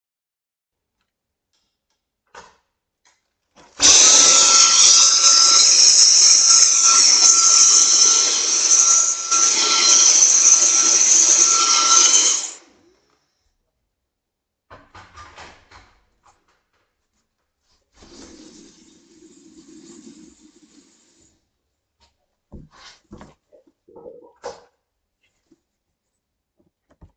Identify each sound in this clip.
light switch, vacuum cleaner, running water